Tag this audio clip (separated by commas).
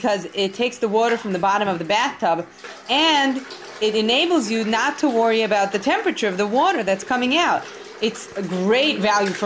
Bathtub (filling or washing), faucet, Water